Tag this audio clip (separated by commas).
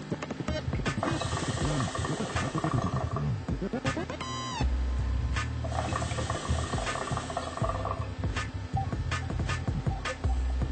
Music, inside a small room